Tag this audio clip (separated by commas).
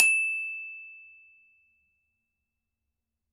Musical instrument, Mallet percussion, Percussion, Music, Glockenspiel